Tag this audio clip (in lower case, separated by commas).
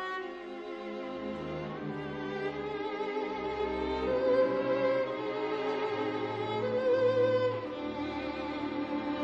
musical instrument, orchestra, violin, music